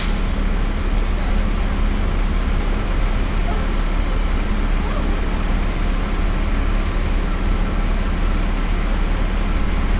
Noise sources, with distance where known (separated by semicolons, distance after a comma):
large-sounding engine, near